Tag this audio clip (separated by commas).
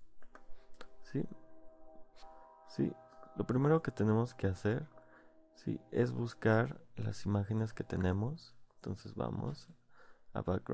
Speech, Music